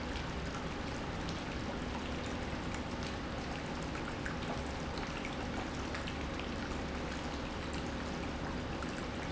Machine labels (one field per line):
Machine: pump